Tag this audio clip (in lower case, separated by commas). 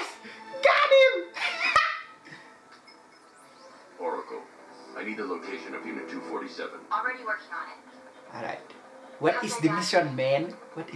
speech, music